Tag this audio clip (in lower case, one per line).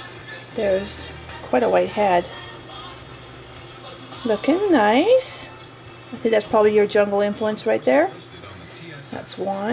inside a small room
speech
music